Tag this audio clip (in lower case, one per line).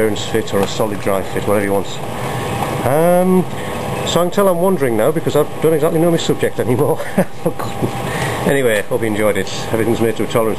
speech